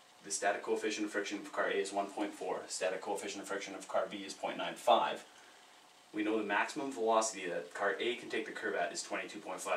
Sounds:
Speech

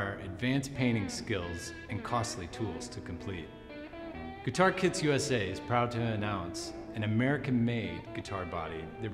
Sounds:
Musical instrument, Speech, Music

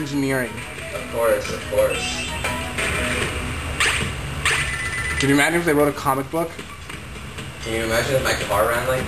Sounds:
Speech, inside a small room, Music

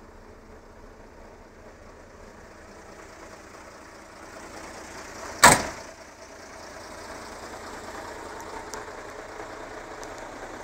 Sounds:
Truck, Vehicle

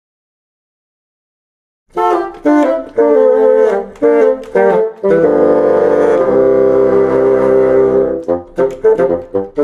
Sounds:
playing bassoon

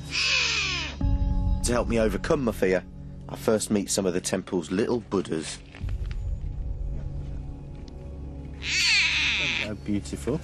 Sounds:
Speech, Animal, Music, roaring cats

